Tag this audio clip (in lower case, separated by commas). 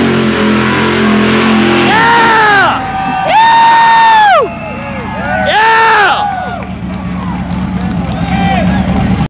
speech